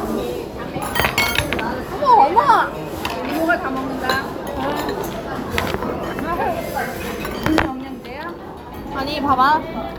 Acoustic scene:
crowded indoor space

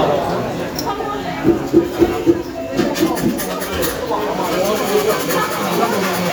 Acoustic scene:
cafe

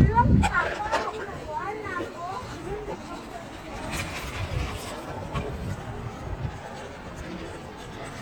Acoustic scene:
residential area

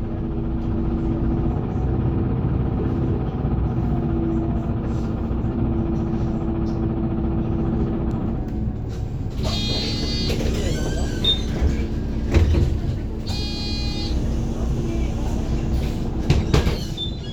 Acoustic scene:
bus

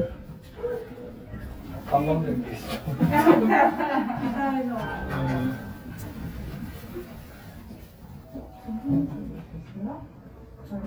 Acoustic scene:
elevator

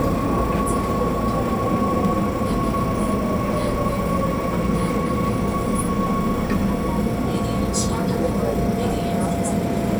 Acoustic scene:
subway train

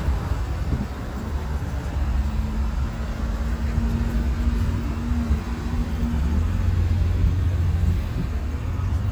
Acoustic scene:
street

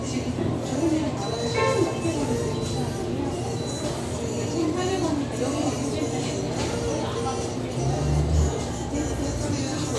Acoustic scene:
restaurant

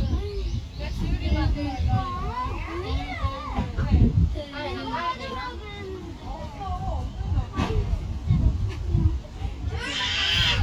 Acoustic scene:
residential area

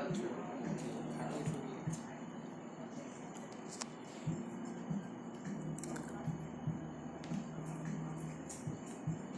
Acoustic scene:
cafe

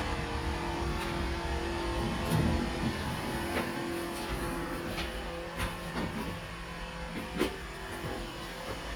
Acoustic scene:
elevator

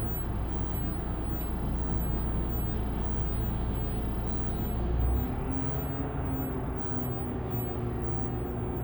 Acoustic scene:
bus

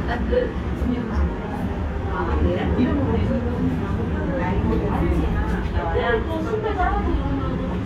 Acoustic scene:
restaurant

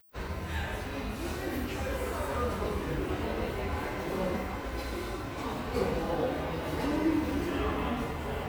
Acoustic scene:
subway station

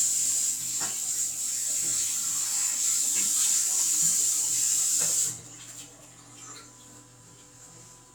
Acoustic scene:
restroom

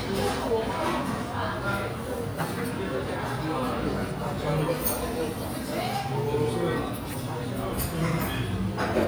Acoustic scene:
restaurant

